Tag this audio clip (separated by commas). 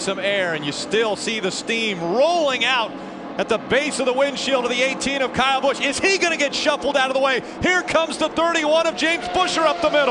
Car, Vehicle, Speech